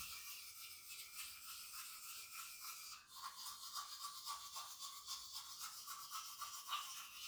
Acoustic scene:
restroom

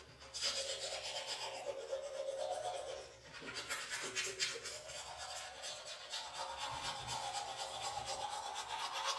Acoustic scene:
restroom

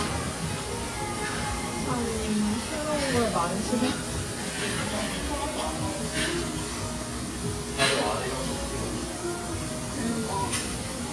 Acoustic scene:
restaurant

